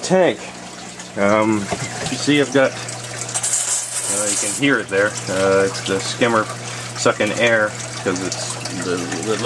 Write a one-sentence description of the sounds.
Male speaking over running water from plumbing